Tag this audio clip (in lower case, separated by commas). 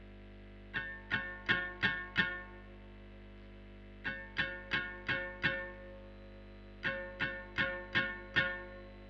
music, plucked string instrument, guitar, musical instrument, electric guitar